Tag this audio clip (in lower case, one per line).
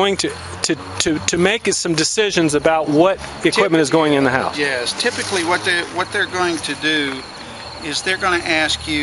speech